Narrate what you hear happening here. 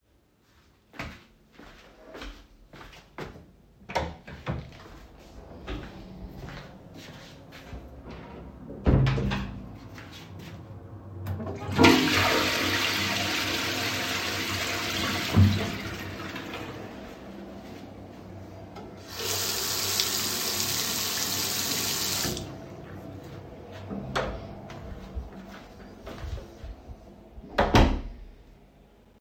I firstly opened my living room door than walked through the hallway to the bathroom. Opened the bathroom door and turned on the light switch, flushed the toilet and after I turned on the sink and washed my hands, after that I closed the bathroom door and left.